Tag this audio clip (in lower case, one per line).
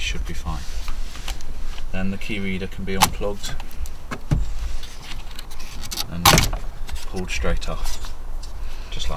speech